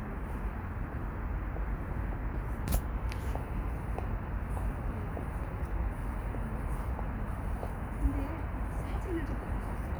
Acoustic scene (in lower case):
residential area